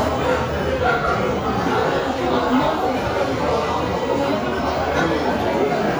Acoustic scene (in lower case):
crowded indoor space